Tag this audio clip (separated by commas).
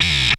Music, Musical instrument